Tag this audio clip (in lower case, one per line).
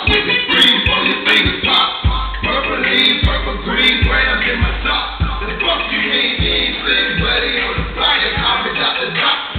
inside a large room or hall
music